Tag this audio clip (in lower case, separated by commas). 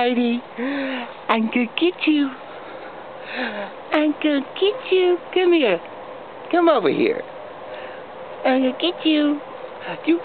speech